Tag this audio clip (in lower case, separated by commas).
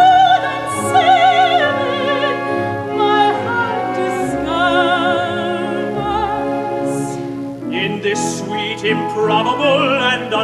music